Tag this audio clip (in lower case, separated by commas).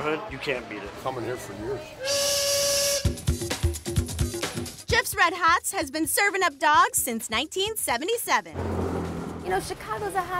speech, music